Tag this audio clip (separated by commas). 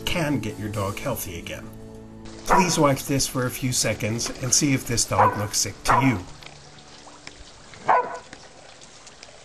Dog, Domestic animals, Animal